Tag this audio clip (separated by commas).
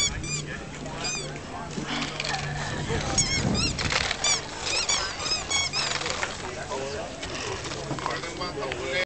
Speech